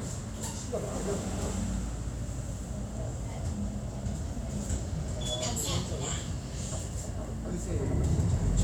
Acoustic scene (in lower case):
bus